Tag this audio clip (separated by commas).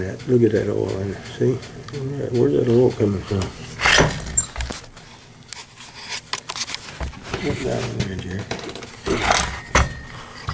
Speech